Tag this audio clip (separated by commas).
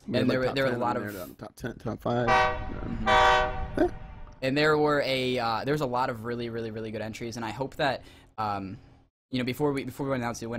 inside a small room, Speech, Toot